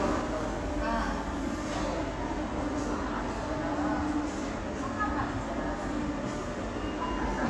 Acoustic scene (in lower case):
subway station